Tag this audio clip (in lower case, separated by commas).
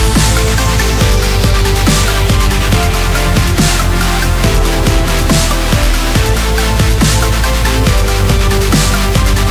electronic music, dubstep, music